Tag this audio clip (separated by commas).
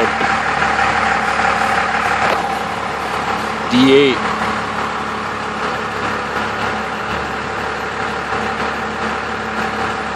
Vehicle, Speech